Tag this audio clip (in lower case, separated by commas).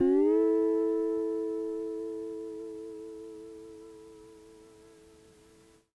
plucked string instrument, music, guitar, musical instrument